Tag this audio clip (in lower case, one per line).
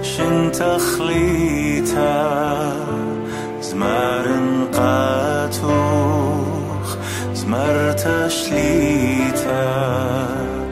lullaby
music